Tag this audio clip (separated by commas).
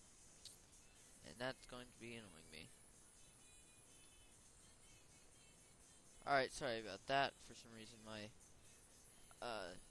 Speech